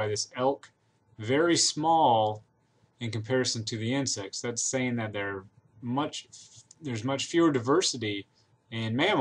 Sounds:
Speech

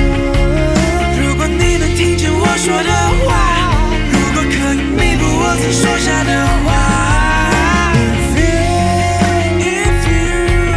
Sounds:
Grunge

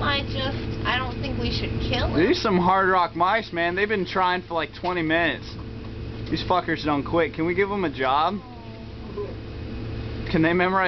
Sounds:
Speech

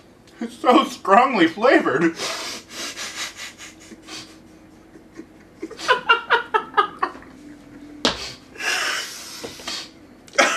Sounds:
inside a small room, Speech

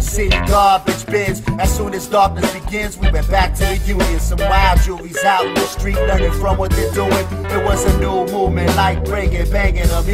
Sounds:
Dance music, Music

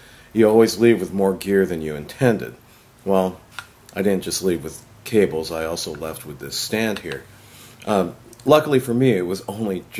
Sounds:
Speech

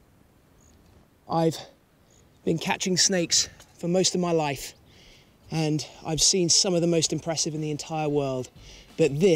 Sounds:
Speech

